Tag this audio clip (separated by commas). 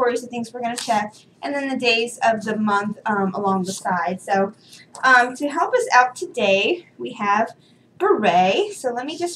Speech